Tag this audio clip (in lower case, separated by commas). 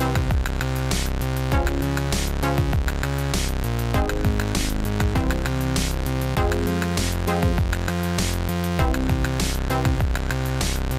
music